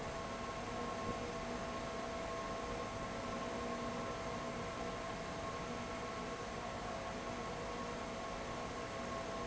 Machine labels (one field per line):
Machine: fan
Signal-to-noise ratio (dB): 0 dB